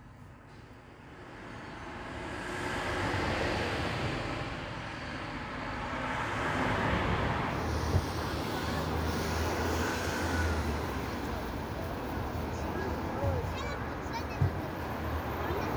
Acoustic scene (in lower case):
street